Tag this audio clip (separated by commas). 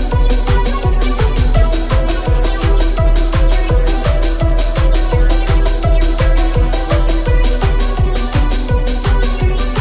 Trance music, Electronic music, Music, Techno